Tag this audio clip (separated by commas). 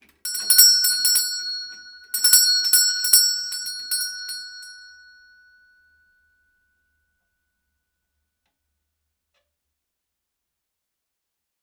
home sounds, Doorbell, Door, Alarm